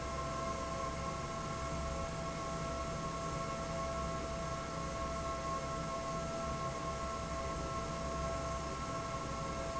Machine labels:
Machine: fan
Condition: normal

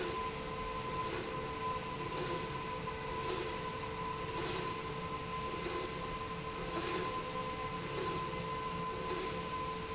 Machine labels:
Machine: slide rail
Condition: normal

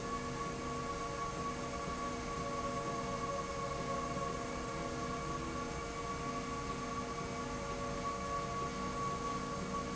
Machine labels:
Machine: slide rail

